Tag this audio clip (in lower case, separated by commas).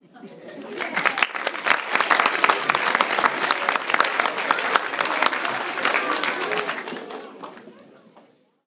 applause, human group actions